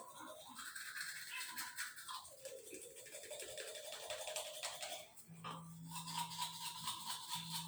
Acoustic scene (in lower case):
restroom